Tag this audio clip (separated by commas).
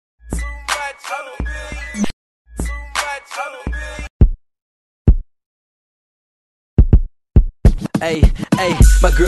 Music, Rhythm and blues